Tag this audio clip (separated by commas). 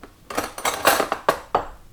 home sounds, silverware